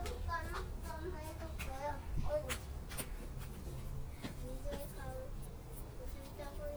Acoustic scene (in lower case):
park